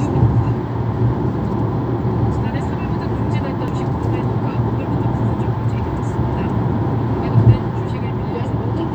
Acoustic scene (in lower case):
car